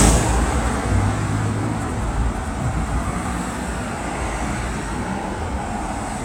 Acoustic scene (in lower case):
street